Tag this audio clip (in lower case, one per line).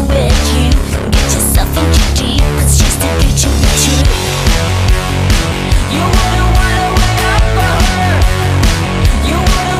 music
techno
electronic music